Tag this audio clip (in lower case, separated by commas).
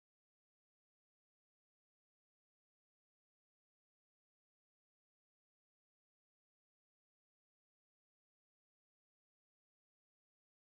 bathroom ventilation fan running